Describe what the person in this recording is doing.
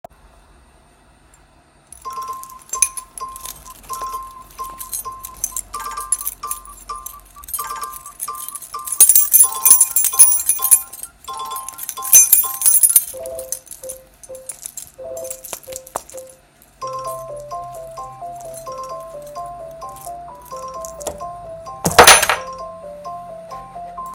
I was sitting at my desk and my phone rang. While the phone was still ringing, I picked up my keychain and played with it. Then I placed my keychain on the desk.